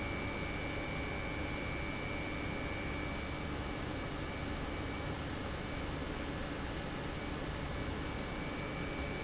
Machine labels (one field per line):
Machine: pump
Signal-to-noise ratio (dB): -6 dB